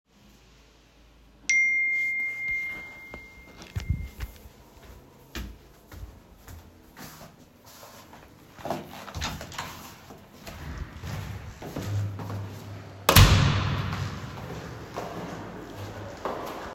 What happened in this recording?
I received notifications on my phone from my friend, I got out of the chair and wore my slippers and opened the door went out and closed the door and started walking in the hallway towards the stairs